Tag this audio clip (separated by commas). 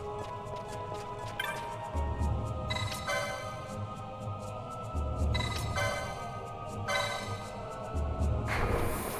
Music